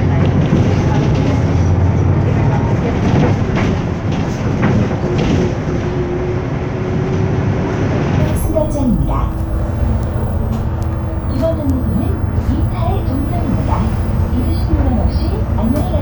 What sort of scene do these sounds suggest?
bus